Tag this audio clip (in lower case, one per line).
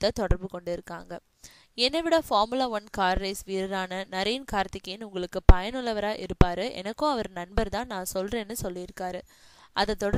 speech